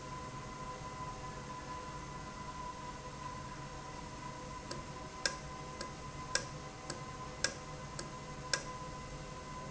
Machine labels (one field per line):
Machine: valve